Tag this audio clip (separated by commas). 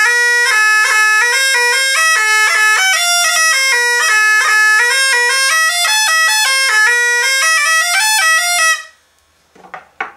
playing bagpipes